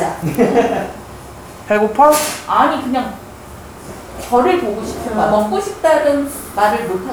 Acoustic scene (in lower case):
crowded indoor space